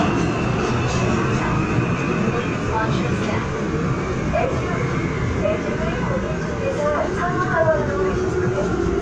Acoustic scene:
subway train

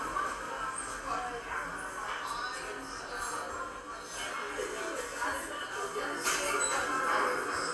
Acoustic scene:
cafe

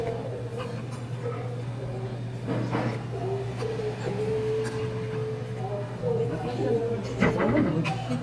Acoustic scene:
restaurant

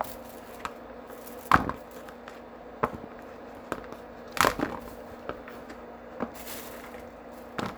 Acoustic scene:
kitchen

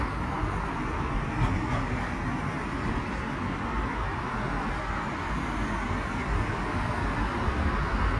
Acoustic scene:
street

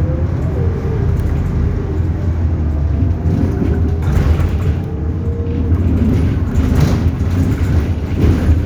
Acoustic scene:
bus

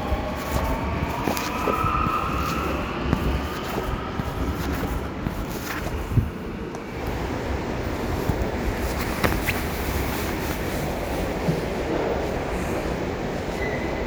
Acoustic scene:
subway station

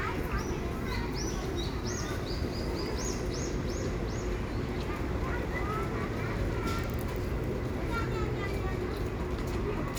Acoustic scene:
residential area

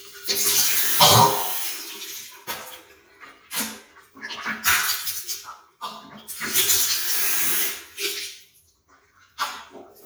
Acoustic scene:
restroom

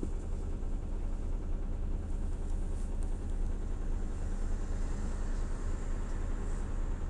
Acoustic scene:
bus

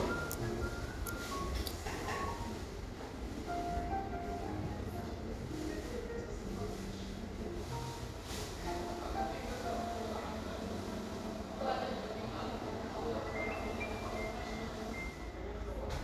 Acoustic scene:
cafe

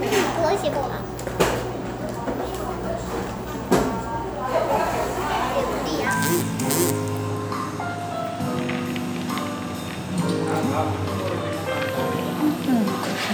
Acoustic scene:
cafe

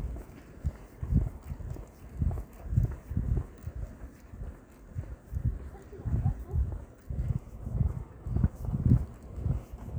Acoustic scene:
residential area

